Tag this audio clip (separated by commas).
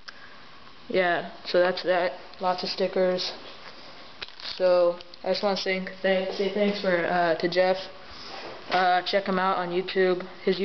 Speech